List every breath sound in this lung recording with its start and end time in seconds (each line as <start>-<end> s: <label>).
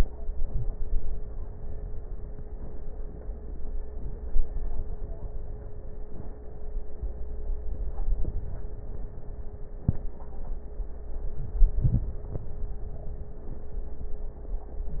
0.14-1.45 s: inhalation
0.14-1.45 s: crackles
3.97-5.34 s: inhalation
3.97-5.34 s: crackles
7.63-9.08 s: inhalation
7.63-9.08 s: crackles
11.19-12.47 s: inhalation
11.36-11.79 s: wheeze